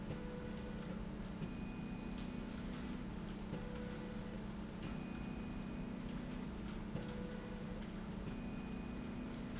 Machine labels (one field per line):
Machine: slide rail